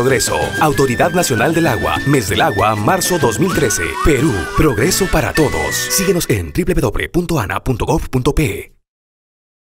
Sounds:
speech
music

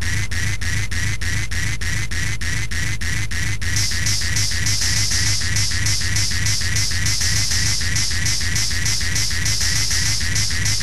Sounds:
music
electronic music
electronic dance music

